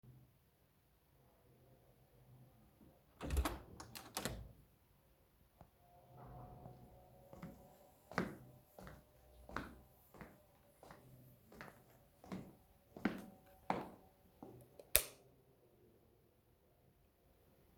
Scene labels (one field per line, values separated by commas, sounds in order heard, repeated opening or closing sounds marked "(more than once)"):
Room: hallway, living room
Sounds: door, footsteps, light switch